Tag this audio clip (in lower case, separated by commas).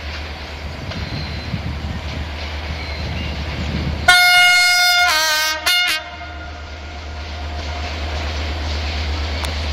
toot, railroad car, rail transport, train, vehicle